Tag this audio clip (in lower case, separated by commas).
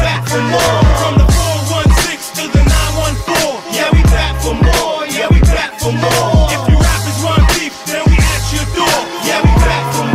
music, middle eastern music